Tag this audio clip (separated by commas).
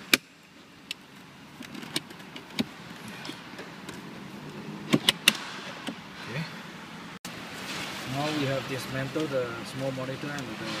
Speech